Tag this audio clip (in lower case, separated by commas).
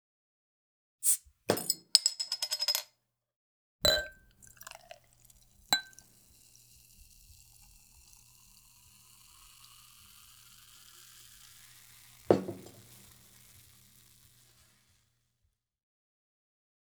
glass, clink, liquid